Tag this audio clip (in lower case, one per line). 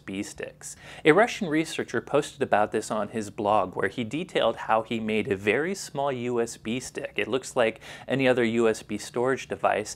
speech